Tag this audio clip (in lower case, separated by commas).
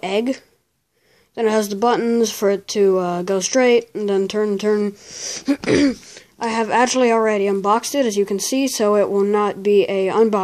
inside a small room, speech